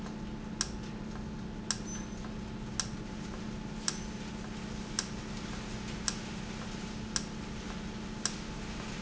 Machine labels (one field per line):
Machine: valve